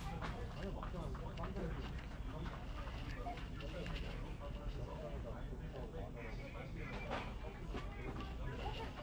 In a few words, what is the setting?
crowded indoor space